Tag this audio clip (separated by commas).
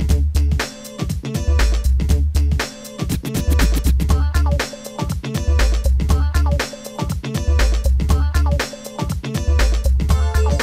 Music